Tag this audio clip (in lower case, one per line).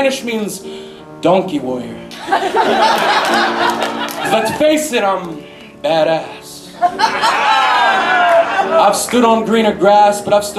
music
speech